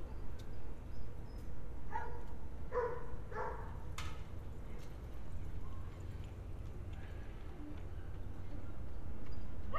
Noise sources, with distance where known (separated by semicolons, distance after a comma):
dog barking or whining